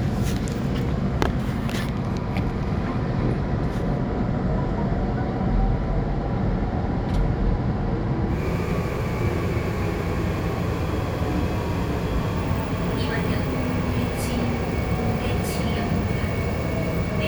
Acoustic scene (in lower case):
subway train